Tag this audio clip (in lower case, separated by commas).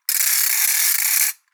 percussion, mechanisms, musical instrument, ratchet, music